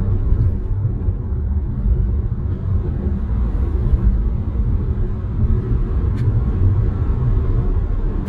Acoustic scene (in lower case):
car